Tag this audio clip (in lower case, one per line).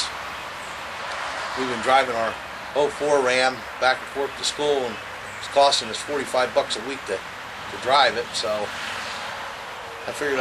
speech